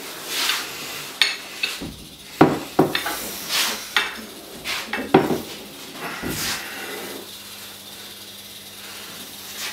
Something clanks and rattles